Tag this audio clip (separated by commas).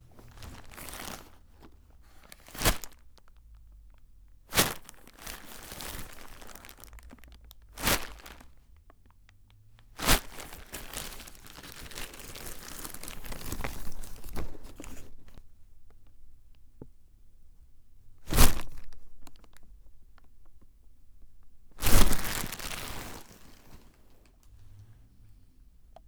crinkling